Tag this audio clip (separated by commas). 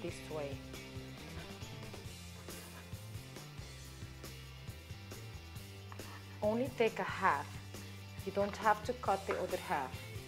Speech, Music